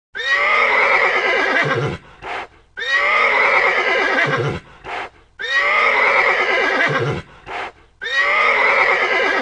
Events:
[7.28, 7.69] horse
[7.99, 9.41] whinny

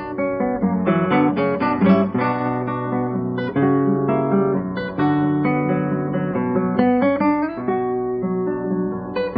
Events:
[0.01, 9.35] music

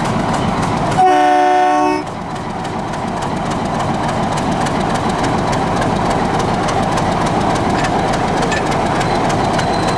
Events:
[0.00, 9.95] train
[0.88, 2.04] train horn
[7.71, 7.89] tick
[8.48, 8.64] tick
[9.00, 9.22] train wheels squealing
[9.34, 9.95] train wheels squealing

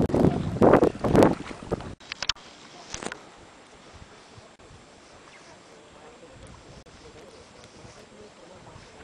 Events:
[0.00, 9.03] rowboat
[0.00, 9.03] surf
[0.00, 9.03] wind
[0.01, 1.91] wind noise (microphone)
[0.23, 0.58] human voice
[2.07, 2.34] generic impact sounds
[2.62, 2.89] human voice
[2.80, 3.15] generic impact sounds
[3.34, 4.58] speech
[3.71, 4.41] surface contact
[3.89, 4.42] wind noise (microphone)
[4.91, 5.89] surface contact
[5.24, 5.42] bird song
[5.37, 6.79] speech
[6.37, 6.50] generic impact sounds
[6.41, 6.78] surface contact
[6.88, 8.09] surface contact
[6.89, 9.01] speech
[7.11, 7.28] generic impact sounds
[7.56, 7.67] tick
[8.13, 8.32] bird song
[8.71, 8.93] surface contact

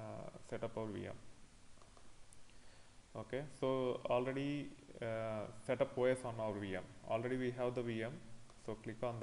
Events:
[0.00, 1.15] man speaking
[0.00, 9.22] background noise
[1.77, 2.04] clicking
[2.28, 2.40] tick
[2.44, 2.94] breathing
[3.13, 6.86] man speaking
[7.07, 8.21] man speaking
[8.46, 8.57] tick
[8.57, 9.22] man speaking

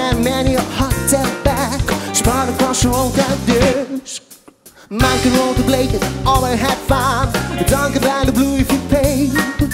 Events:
[0.00, 4.28] male singing
[0.00, 9.73] music
[4.85, 9.73] male singing

